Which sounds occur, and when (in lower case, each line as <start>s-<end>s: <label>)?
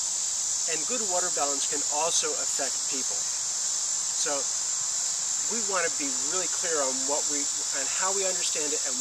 0.0s-9.0s: wind
0.6s-2.6s: male speech
2.8s-3.2s: male speech
4.1s-4.4s: male speech
5.4s-7.2s: male speech
7.3s-9.0s: male speech